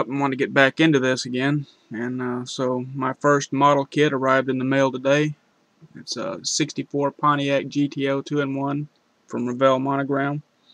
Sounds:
speech

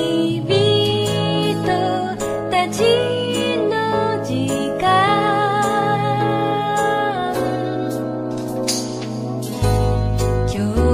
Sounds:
music

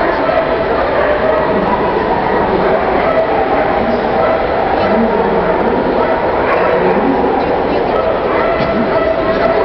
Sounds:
bow-wow
speech

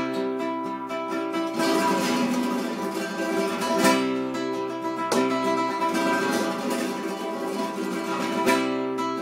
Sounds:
music
guitar
strum
musical instrument
electric guitar
plucked string instrument

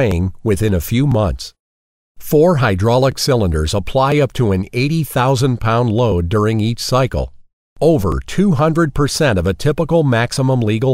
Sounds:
speech

